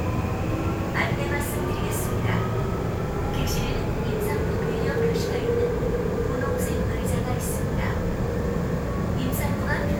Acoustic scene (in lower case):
subway train